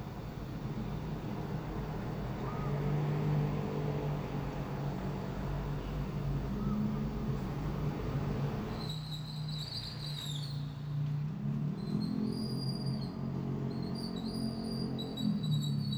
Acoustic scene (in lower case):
street